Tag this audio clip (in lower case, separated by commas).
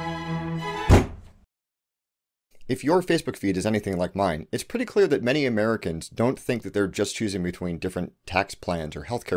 speech, music